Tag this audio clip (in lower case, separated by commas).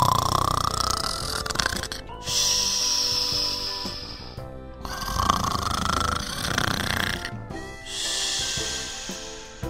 music